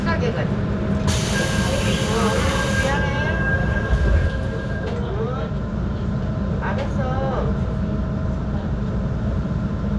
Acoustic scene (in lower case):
subway train